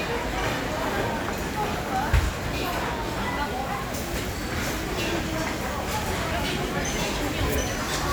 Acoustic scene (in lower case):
crowded indoor space